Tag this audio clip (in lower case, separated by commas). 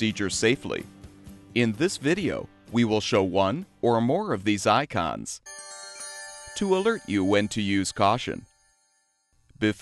music, speech